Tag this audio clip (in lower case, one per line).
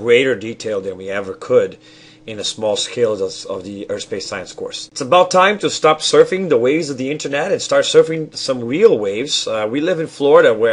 speech